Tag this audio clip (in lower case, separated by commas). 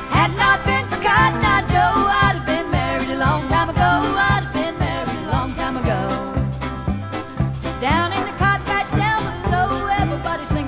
music